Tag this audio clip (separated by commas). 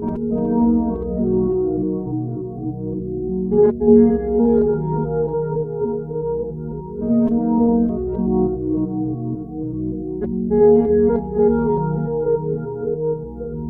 Music, Piano, Musical instrument, Keyboard (musical)